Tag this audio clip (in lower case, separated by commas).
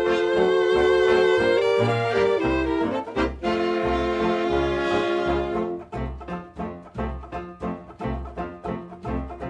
music